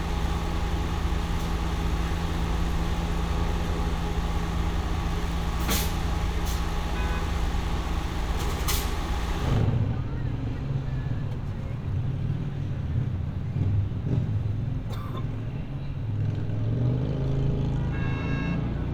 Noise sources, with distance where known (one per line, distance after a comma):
medium-sounding engine
car horn